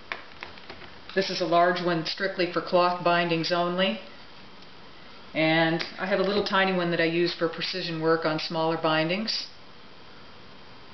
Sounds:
speech

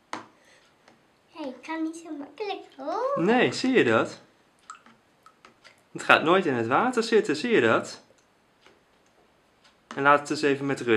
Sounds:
speech

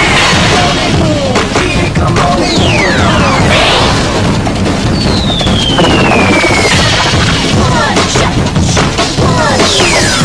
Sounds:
music

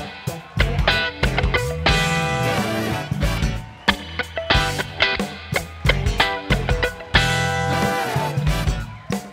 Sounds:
musical instrument
strum
music
plucked string instrument
guitar

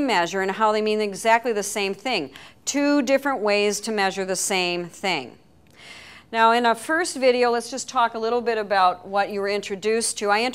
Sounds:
speech

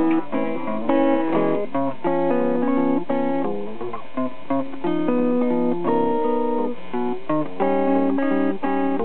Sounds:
electric guitar
plucked string instrument
strum
musical instrument
guitar
music

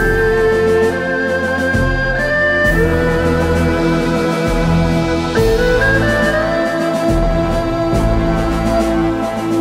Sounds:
playing erhu

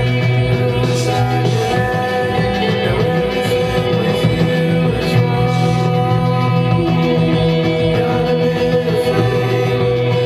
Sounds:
vocal music

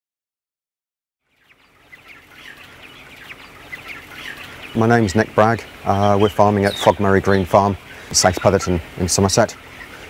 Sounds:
animal
chicken
livestock
bird

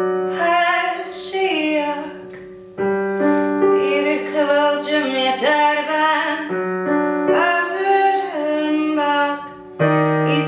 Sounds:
music

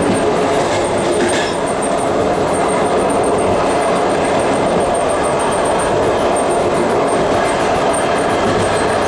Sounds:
clickety-clack
railroad car
rail transport
train

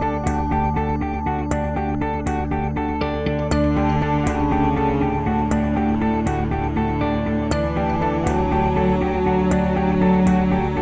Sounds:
music

